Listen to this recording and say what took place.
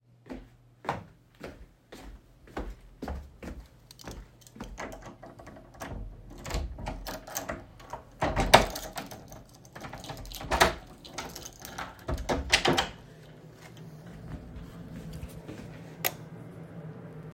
go to home, open the door with my key and turn on light